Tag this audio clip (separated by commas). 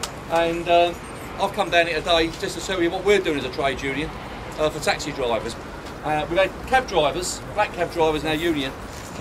Speech